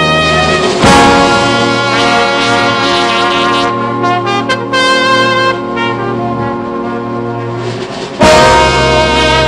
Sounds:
orchestra, music

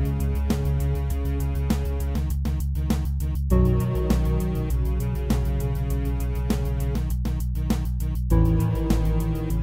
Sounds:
music

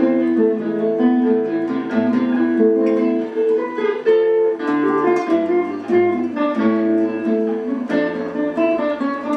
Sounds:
acoustic guitar, guitar, plucked string instrument, music, musical instrument, strum

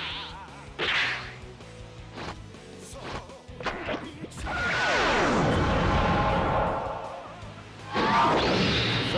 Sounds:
music, speech

